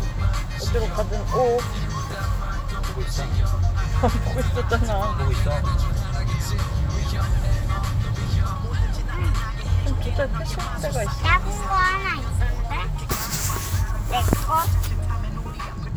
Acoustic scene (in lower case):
car